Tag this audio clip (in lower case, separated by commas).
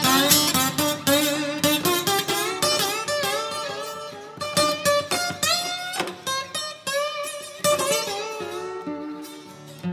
slide guitar